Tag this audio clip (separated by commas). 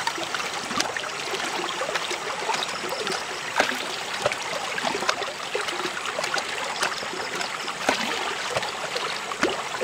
pumping water